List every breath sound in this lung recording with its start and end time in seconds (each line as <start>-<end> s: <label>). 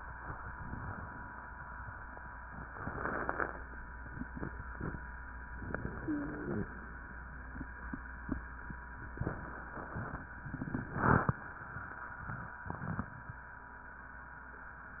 5.56-6.70 s: inhalation
5.98-6.70 s: wheeze